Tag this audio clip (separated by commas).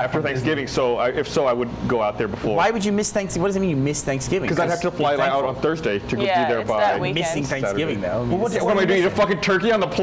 Speech